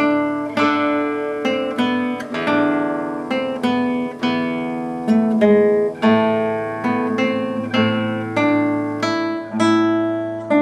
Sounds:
plucked string instrument, acoustic guitar, guitar, music, musical instrument, strum

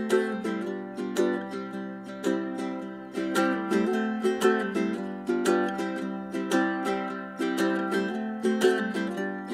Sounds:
playing ukulele

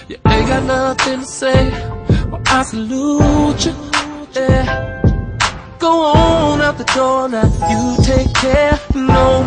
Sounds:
rhythm and blues, independent music, music

